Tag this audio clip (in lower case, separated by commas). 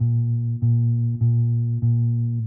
musical instrument, bass guitar, plucked string instrument, guitar, music